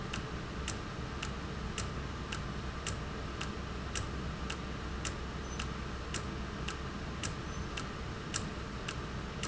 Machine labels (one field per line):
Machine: valve